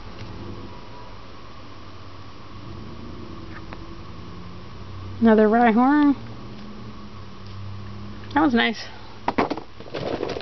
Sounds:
inside a small room, speech

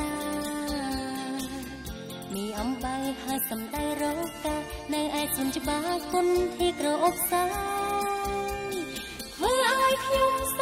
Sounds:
exciting music, music

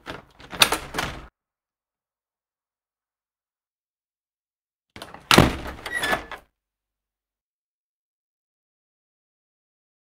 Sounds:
opening or closing car doors

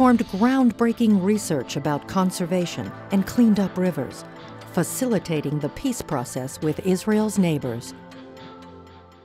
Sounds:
music, speech

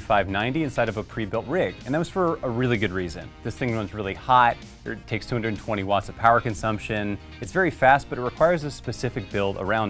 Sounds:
speech, music

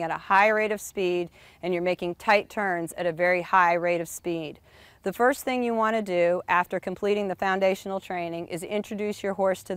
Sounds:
speech

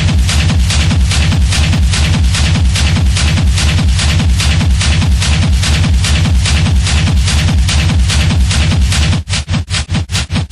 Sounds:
music, electronic music, techno

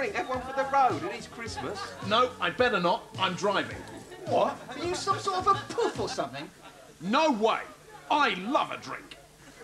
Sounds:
speech, music

